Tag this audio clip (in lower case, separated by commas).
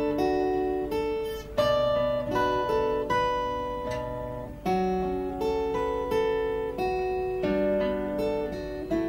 strum, musical instrument, music, guitar, plucked string instrument